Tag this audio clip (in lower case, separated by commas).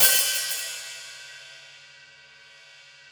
music, cymbal, percussion, hi-hat, musical instrument